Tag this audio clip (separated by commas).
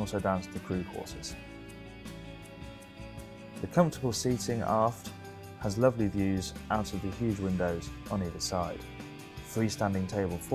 Speech, Music